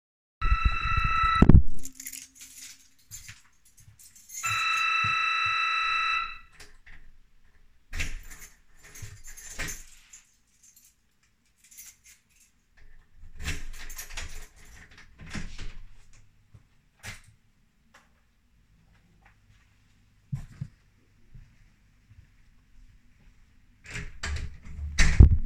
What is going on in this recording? The door bell rang. I walked to the door, opened it with my key, let the person in and then closed it